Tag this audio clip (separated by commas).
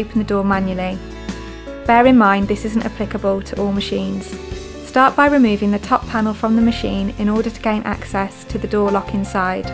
Speech, Music